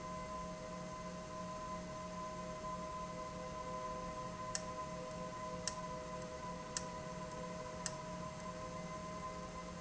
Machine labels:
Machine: valve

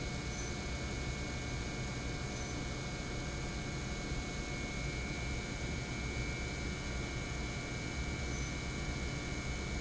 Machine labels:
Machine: pump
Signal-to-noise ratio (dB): -6 dB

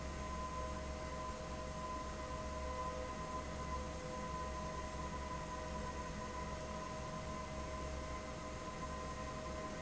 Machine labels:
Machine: fan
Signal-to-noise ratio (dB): 0 dB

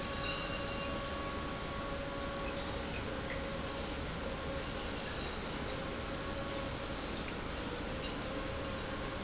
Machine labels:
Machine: pump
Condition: normal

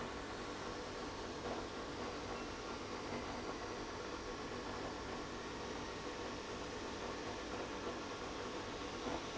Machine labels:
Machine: pump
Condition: abnormal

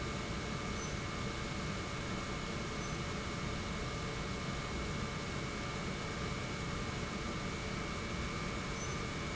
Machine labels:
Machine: pump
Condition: normal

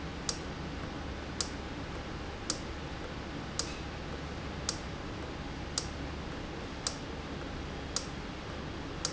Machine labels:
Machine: valve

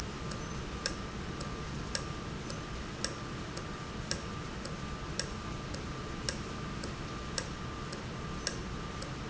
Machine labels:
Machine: valve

